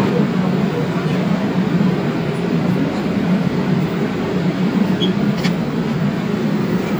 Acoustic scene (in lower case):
subway station